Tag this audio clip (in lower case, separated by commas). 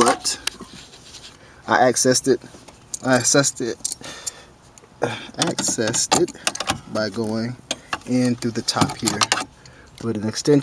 speech